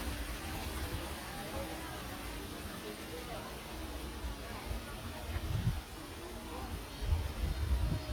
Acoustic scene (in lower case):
park